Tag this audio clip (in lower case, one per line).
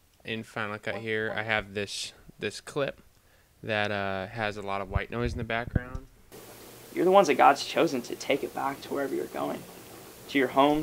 speech
white noise